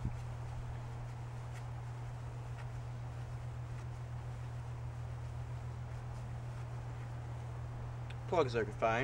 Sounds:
speech

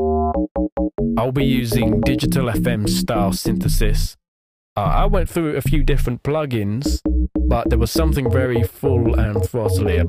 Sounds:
speech

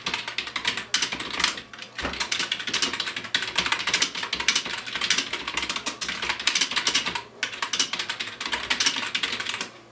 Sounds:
speech
typewriter

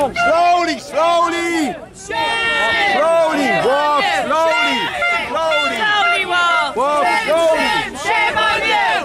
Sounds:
speech

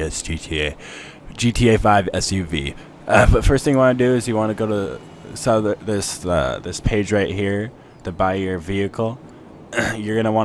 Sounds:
speech

